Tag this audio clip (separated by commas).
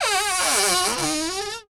Domestic sounds, Cupboard open or close, Door